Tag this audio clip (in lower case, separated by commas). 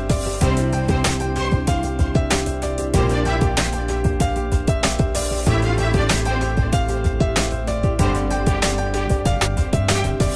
music